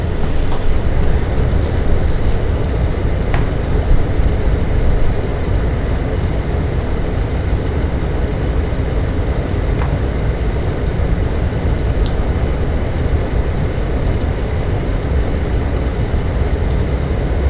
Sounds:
Fire

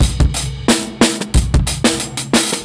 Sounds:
Percussion, Drum kit, Music, Musical instrument

